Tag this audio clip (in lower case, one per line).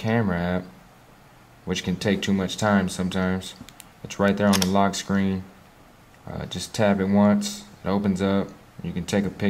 speech